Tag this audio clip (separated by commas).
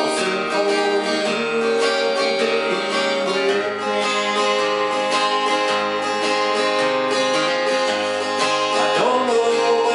Male singing, Music